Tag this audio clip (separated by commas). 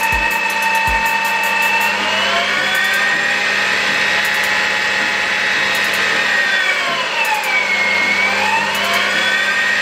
lathe spinning